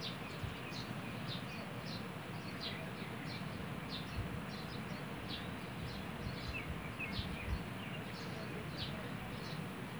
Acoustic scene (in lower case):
park